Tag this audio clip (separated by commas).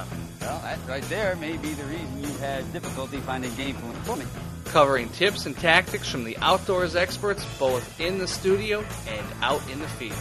Speech, Music